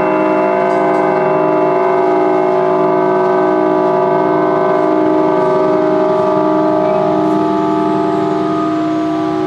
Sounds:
Music

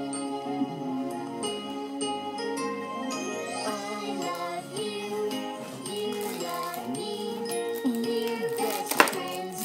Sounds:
Music

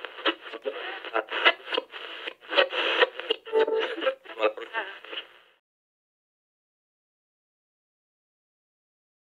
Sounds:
Sound effect

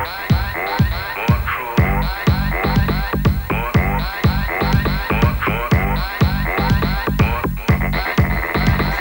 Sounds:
Music

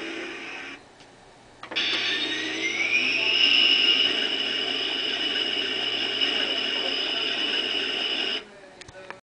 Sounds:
Speech

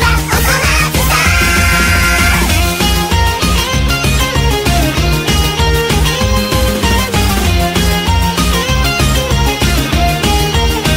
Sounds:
Music, Singing

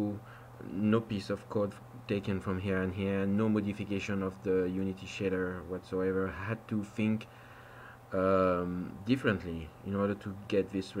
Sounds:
Speech

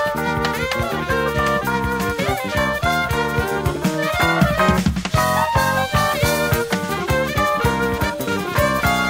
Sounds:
Music, Piano, Musical instrument, Keyboard (musical)

